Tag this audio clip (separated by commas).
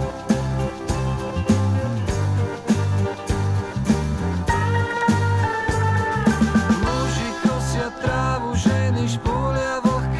Music